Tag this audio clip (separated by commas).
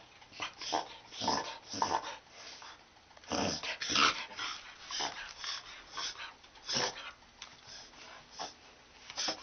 Domestic animals, Dog, inside a small room, Animal